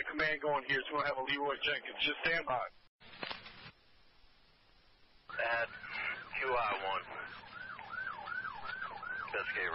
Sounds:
police radio chatter

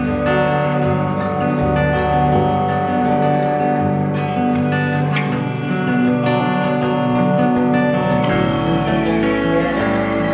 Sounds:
playing steel guitar

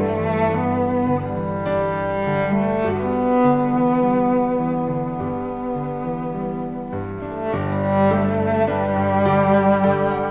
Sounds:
music
cello

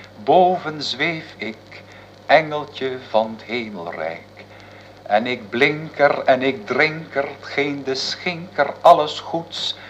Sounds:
speech

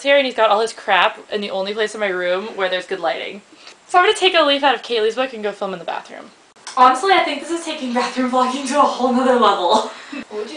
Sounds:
speech

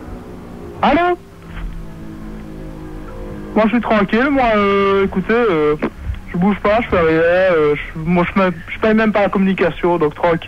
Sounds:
speech

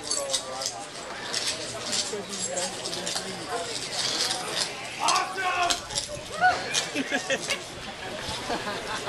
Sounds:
chink
speech

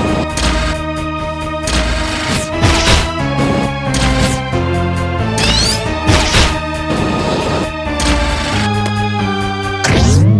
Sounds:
music

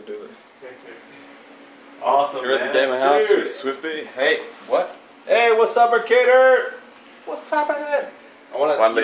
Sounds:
speech

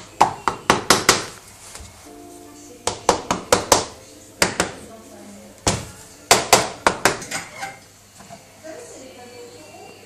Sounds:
speech
music

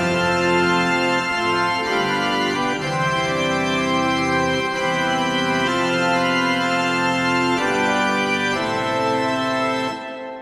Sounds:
playing electronic organ

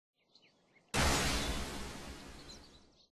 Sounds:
whack

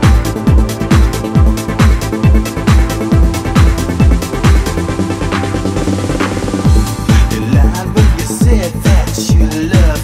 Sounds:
music

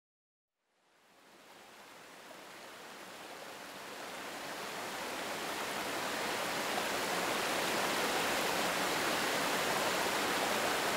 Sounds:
pink noise

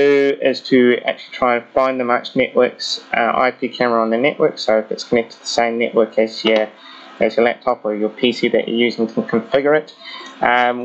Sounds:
speech

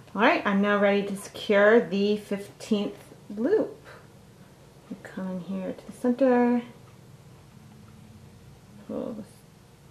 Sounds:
speech

